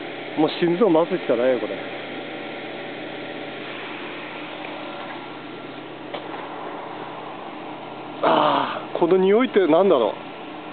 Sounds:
Speech

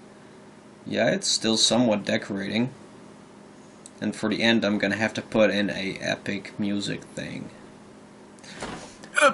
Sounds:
Speech, inside a small room

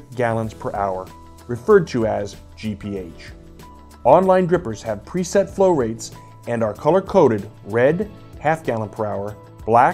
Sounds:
Speech, Music

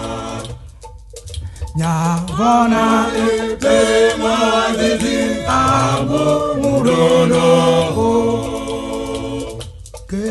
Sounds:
Music, Gospel music

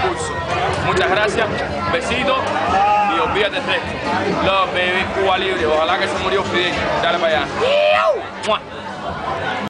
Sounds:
Speech

